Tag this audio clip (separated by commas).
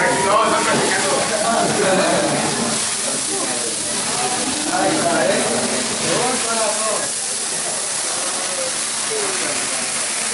Speech